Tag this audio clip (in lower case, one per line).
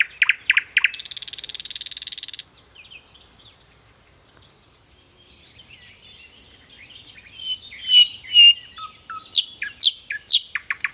bird chirping